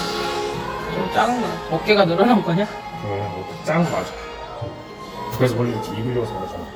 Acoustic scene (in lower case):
cafe